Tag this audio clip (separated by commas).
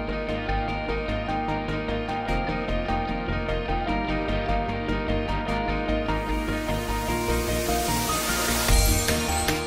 Music